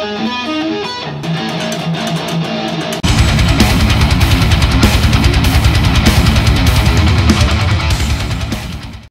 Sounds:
Musical instrument, Music, Guitar, Plucked string instrument, Electric guitar

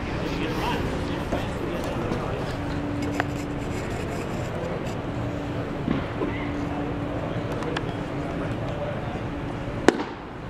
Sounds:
Speech

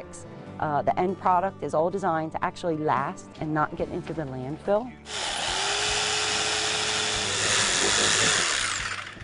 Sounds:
Sawing

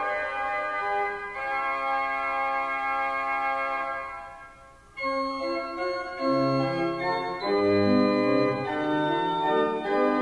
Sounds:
Hammond organ, Organ, Keyboard (musical), playing hammond organ

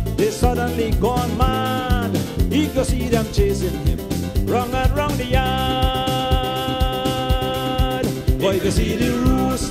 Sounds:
Music

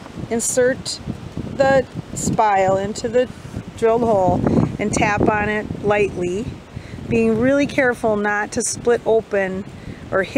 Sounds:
Speech

